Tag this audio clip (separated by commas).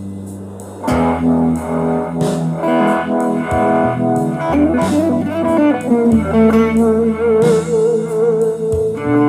Music, Plucked string instrument, Harmonic, Guitar, Musical instrument